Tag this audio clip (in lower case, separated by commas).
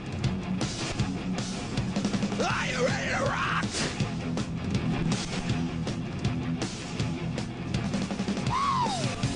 music, cacophony, yell